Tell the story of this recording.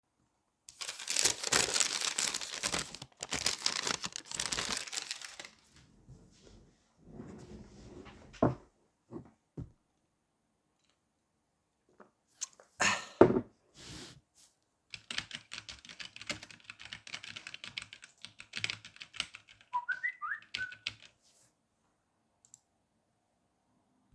I was handling paper in my hands, turned around in my chair to grab a bottle, drink from it and set it aside. Started working by typing on the keyboard, while a phone notification came in.